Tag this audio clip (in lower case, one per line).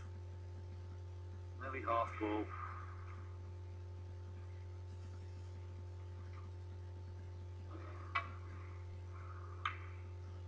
speech